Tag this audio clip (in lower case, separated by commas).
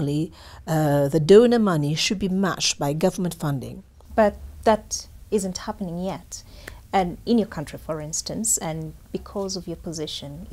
speech